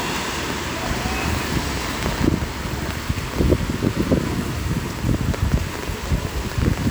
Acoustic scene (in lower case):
street